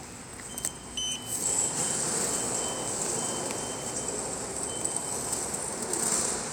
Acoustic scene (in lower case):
subway station